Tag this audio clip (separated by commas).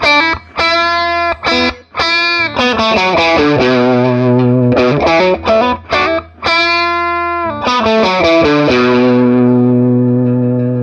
Music, Plucked string instrument, Guitar